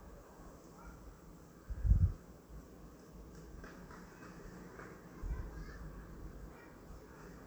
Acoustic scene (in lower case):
residential area